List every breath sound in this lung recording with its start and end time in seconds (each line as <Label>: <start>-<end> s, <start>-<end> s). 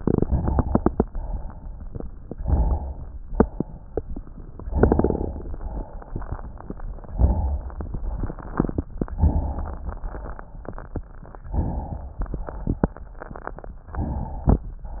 Inhalation: 2.37-3.14 s, 4.72-5.49 s, 7.16-7.67 s, 9.18-9.87 s, 11.54-12.17 s
Exhalation: 1.04-1.91 s, 3.26-3.97 s, 5.51-6.29 s, 7.88-8.84 s, 9.90-10.64 s, 12.22-13.10 s
Crackles: 1.02-2.31 s, 3.27-4.64 s, 5.46-7.13 s, 7.69-8.86 s, 9.85-11.45 s, 12.19-13.78 s